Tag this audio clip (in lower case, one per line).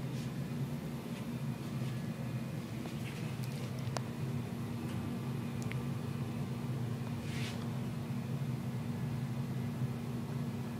mechanical fan